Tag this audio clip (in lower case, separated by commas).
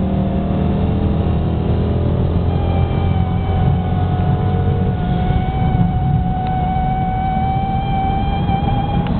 car, vehicle, speech, motor vehicle (road)